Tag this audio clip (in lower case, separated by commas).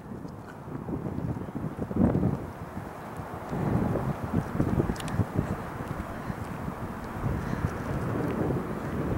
footsteps